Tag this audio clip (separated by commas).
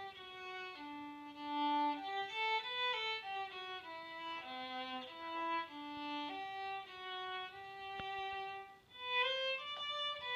Violin, Music, Musical instrument